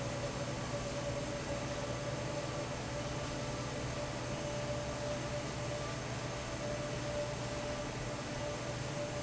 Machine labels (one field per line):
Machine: fan